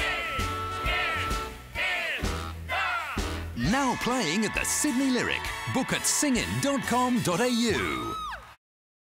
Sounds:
speech, music

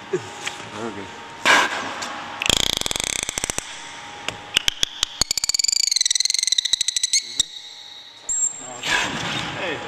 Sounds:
speech, inside a large room or hall

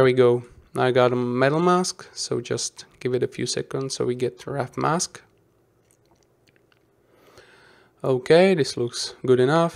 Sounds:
speech

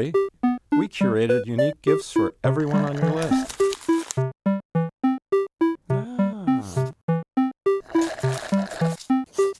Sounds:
inside a small room, speech, music

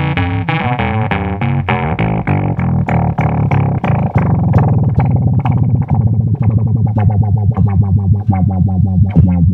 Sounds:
effects unit, musical instrument, music, synthesizer

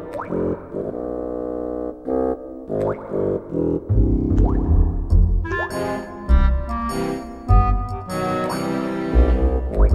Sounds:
music

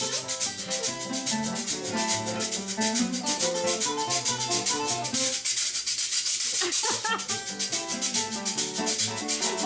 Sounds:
playing guiro

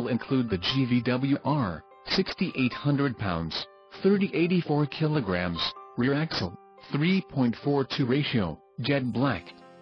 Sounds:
music, speech

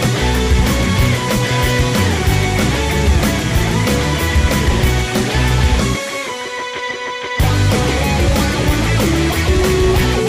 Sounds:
music

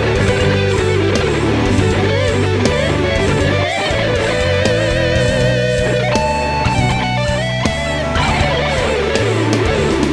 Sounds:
musical instrument, guitar, plucked string instrument, electric guitar, music

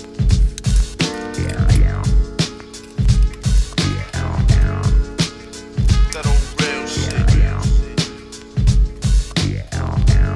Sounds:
music

